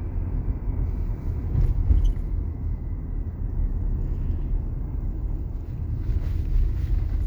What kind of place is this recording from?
car